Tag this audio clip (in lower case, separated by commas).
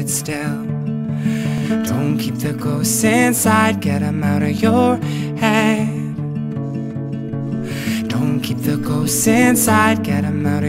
music